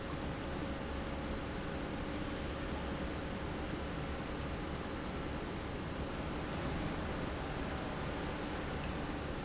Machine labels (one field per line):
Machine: pump